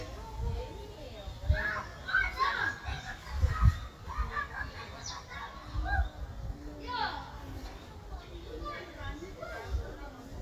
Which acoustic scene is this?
park